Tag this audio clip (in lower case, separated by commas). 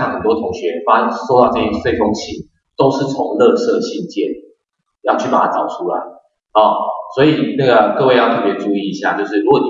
speech